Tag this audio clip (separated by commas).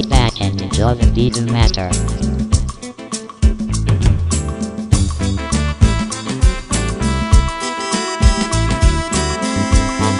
Speech, Reggae, Music